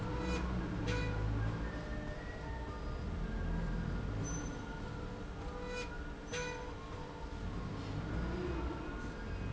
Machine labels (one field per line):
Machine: slide rail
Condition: normal